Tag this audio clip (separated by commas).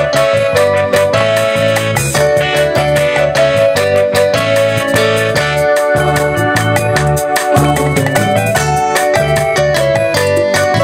Music